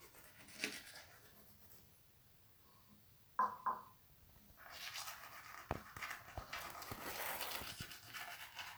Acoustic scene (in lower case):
restroom